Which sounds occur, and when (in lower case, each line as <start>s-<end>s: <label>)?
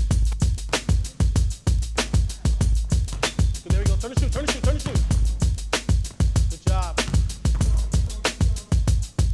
0.0s-9.3s: music
0.0s-0.2s: basketball bounce
0.3s-0.4s: basketball bounce
3.3s-3.4s: basketball bounce
3.6s-5.0s: male speech
4.8s-5.0s: basketball bounce
6.6s-7.1s: male speech
7.0s-7.2s: basketball bounce
7.4s-7.6s: basketball bounce